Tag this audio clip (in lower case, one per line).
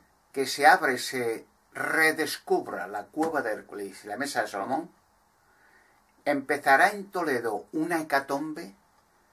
speech